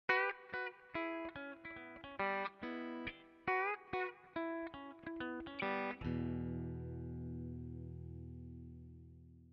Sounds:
music, effects unit

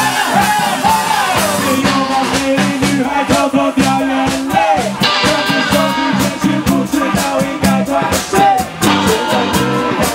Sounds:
music, rock and roll, heavy metal, ska

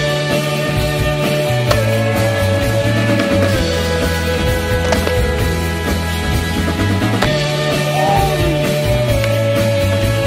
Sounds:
ska, skateboard, music, rock and roll

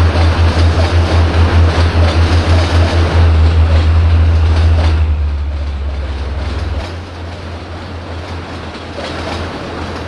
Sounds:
vehicle, rail transport, train

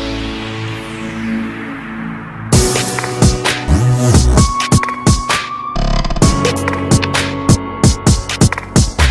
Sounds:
music, electronic music, dubstep

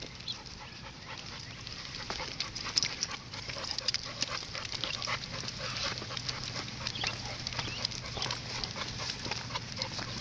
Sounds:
animal, dog, canids, domestic animals

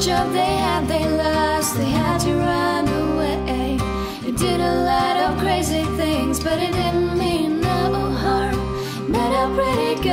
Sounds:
music

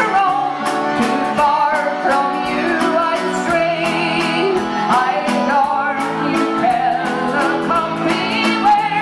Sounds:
music

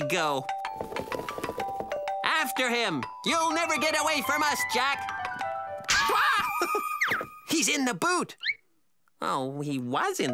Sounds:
music, speech, inside a small room

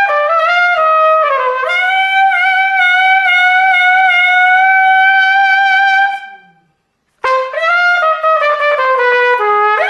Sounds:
trumpet, playing trumpet, music, musical instrument, brass instrument

